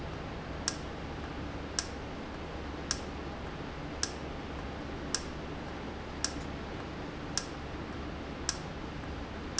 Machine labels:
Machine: valve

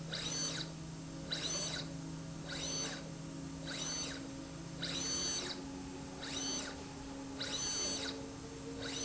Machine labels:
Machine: slide rail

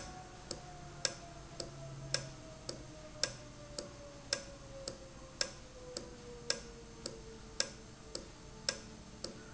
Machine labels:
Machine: valve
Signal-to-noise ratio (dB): 6 dB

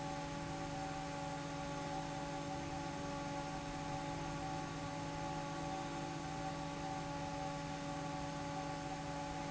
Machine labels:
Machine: fan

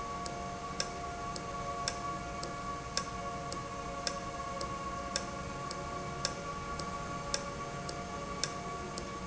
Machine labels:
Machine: valve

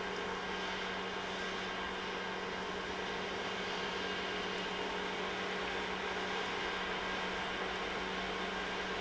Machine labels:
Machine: pump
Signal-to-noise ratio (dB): -6 dB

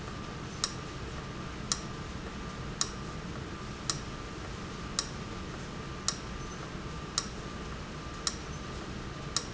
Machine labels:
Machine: valve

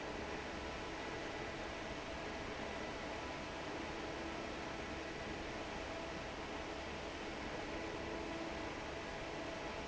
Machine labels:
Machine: fan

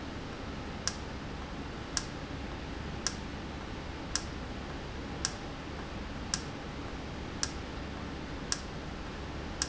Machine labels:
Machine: valve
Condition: normal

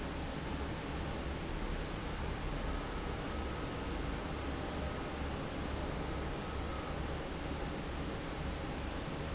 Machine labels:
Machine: fan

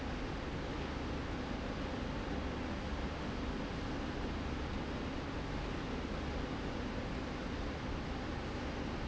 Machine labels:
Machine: slide rail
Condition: normal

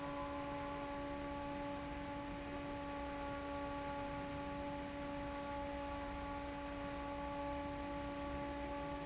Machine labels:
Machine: fan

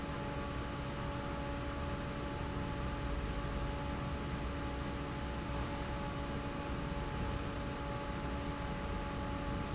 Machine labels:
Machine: fan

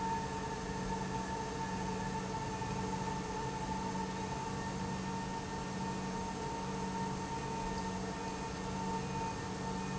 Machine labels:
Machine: pump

